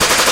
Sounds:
gunshot, explosion

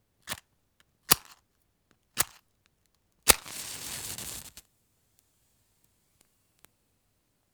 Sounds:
fire

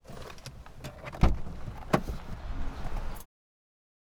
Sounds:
car, motor vehicle (road), vehicle

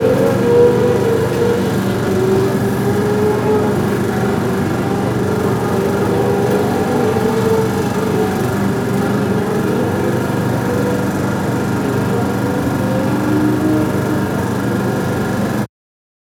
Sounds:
motorcycle, motor vehicle (road), vehicle

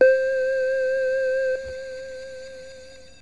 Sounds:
music, keyboard (musical), musical instrument

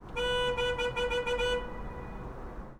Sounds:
motor vehicle (road), traffic noise, vehicle horn, vehicle, car, alarm

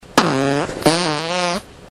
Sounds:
fart

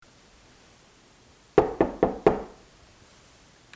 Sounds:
knock, door, home sounds

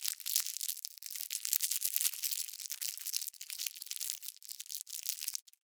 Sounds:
crinkling

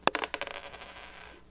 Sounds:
home sounds, coin (dropping)

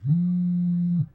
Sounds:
alarm, telephone

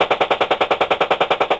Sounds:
explosion, gunfire

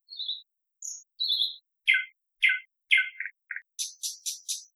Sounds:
bird call, tweet, wild animals, animal, bird

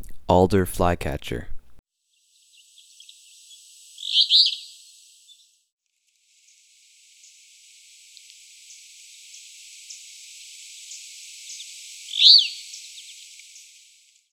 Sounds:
bird, wild animals, bird vocalization, animal

